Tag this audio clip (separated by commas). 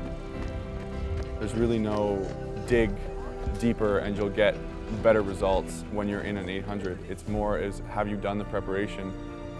outside, urban or man-made, Music, Speech